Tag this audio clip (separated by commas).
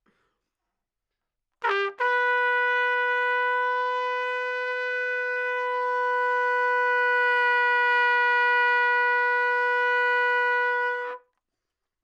Musical instrument, Music, Brass instrument, Trumpet